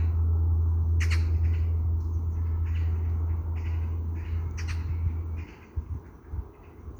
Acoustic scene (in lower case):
park